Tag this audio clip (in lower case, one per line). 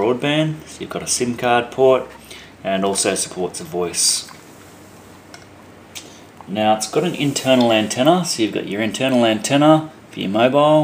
speech